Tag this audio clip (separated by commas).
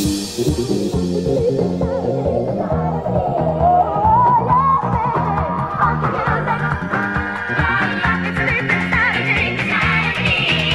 Soundtrack music, Background music, Music